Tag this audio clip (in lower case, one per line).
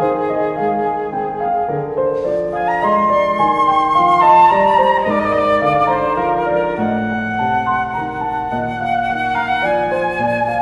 musical instrument
music